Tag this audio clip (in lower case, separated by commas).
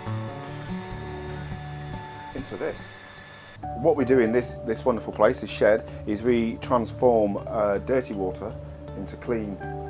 speech, music